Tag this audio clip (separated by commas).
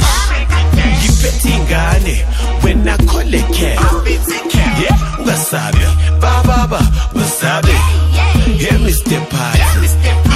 Music, New-age music